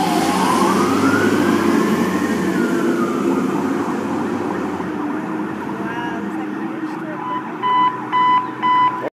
A loud motor passes' by and sirens grow loud and then quiet followed by loud beeping